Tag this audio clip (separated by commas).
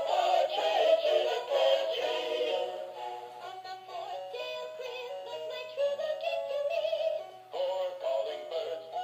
Music, Choir